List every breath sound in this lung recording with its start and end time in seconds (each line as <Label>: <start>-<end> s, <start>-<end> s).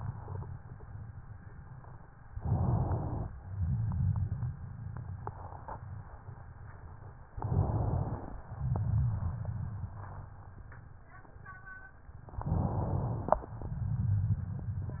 Inhalation: 2.33-3.31 s, 7.36-8.43 s, 12.40-13.59 s
Exhalation: 3.40-6.03 s, 8.47-10.54 s